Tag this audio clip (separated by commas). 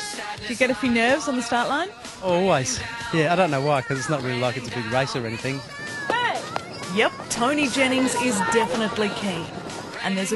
Speech, outside, urban or man-made, Music